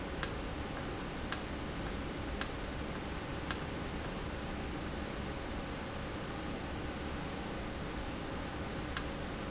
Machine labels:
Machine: valve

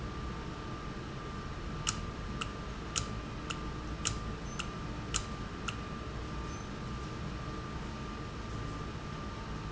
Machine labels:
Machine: valve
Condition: normal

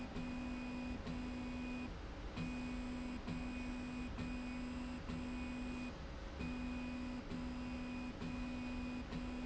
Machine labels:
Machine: slide rail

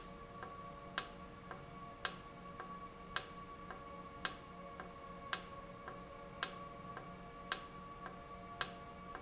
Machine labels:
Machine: valve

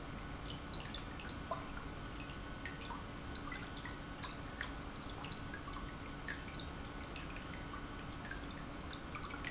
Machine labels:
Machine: pump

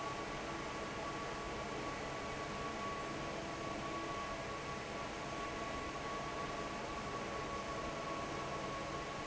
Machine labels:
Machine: fan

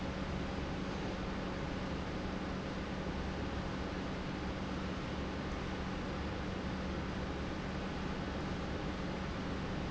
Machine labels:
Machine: pump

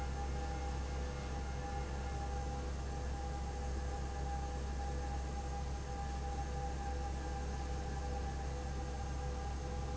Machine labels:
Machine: fan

